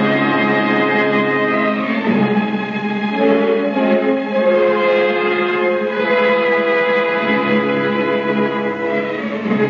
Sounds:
Music

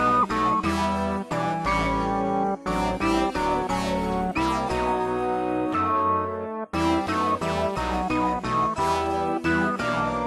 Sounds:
Jingle bell, Music

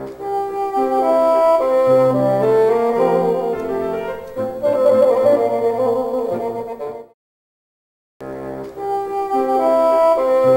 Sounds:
playing bassoon

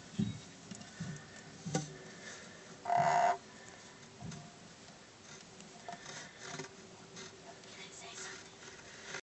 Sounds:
Speech

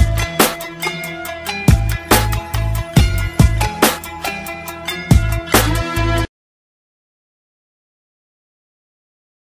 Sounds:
Music

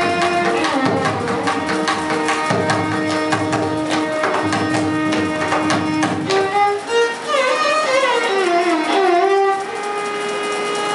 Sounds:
inside a large room or hall, Music, fiddle

